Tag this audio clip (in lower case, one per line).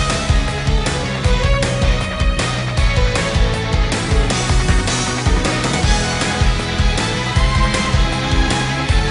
music